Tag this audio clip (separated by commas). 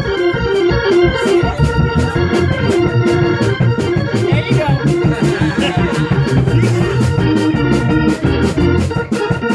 playing hammond organ